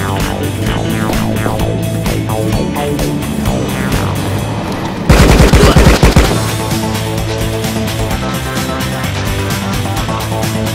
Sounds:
Music

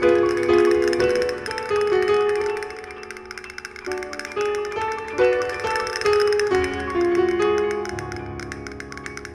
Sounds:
playing castanets

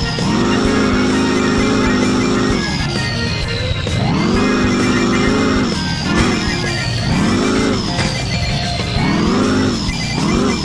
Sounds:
Truck, Music

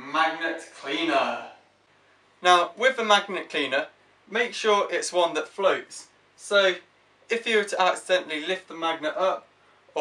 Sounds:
Speech

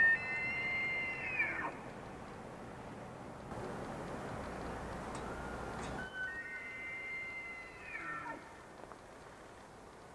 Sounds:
elk bugling

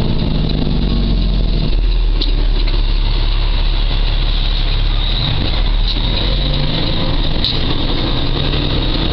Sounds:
Mechanisms

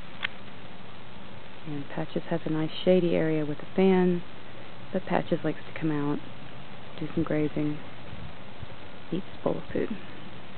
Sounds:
Speech

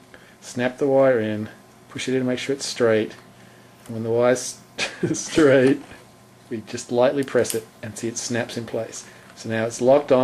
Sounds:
Speech

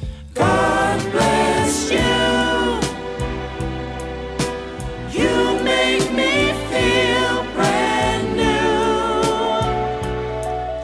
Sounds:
Soul music, Music

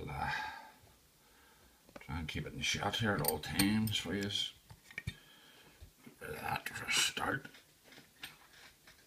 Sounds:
Speech

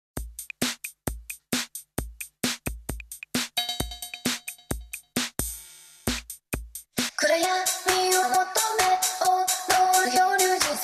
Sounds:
Music, Drum machine

